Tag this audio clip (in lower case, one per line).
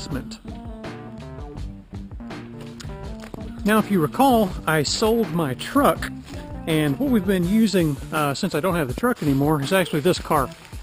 music
speech